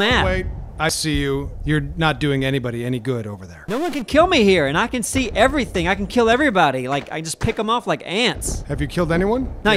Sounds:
speech

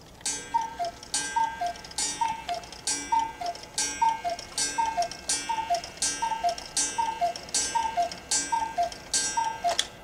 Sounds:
tick-tock

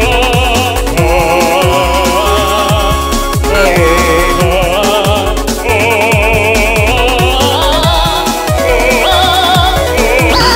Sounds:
music

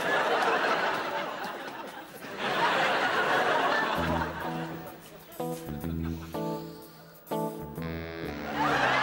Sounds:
laughter

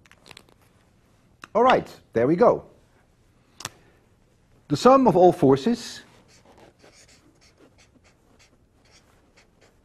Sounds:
speech
writing

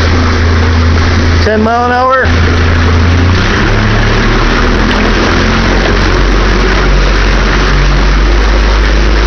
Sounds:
speedboat
boat

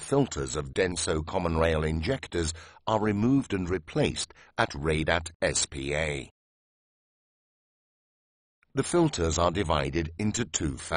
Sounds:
speech

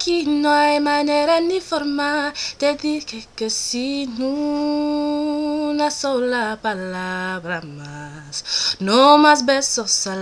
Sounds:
female singing

